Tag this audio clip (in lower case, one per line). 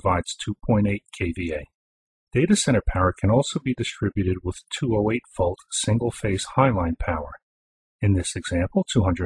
narration